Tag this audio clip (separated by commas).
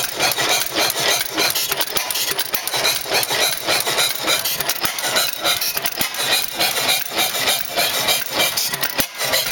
Engine